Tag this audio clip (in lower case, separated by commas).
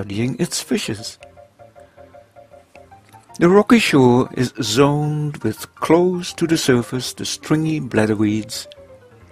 music, speech